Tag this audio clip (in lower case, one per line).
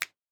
hands
finger snapping